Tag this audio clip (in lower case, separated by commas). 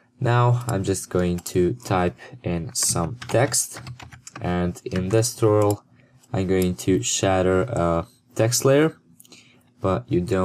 speech